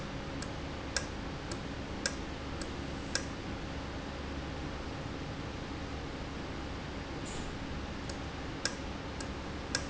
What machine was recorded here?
valve